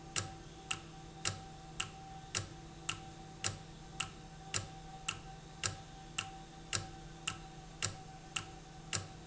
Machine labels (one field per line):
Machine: valve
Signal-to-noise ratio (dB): 6 dB